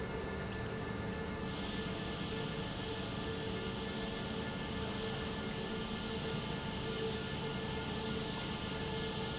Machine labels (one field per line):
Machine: pump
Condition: normal